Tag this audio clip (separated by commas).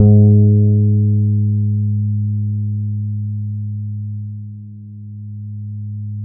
Plucked string instrument, Musical instrument, Bass guitar, Music, Guitar